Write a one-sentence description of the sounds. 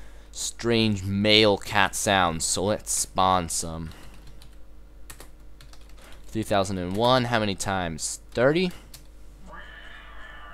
An adult male speaks, then types on a keyboard